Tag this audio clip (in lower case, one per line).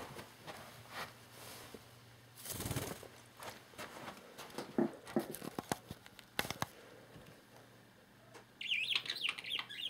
domestic animals